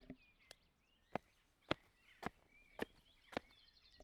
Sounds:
footsteps

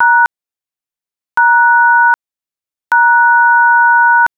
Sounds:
alarm, telephone

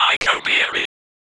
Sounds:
whispering, human voice

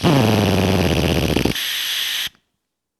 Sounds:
tools, power tool, drill

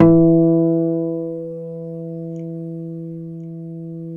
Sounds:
guitar, music, musical instrument, plucked string instrument, acoustic guitar

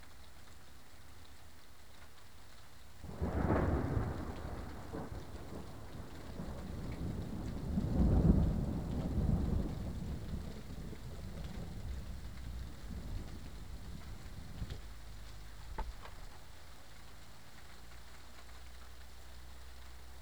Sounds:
thunderstorm, thunder

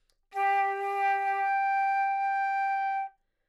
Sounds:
wind instrument, musical instrument, music

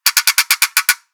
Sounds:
pawl, mechanisms

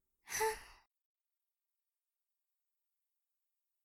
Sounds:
sigh, human voice

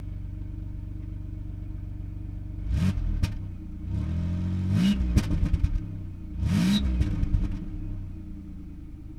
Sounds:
motor vehicle (road), car, vehicle, engine, revving

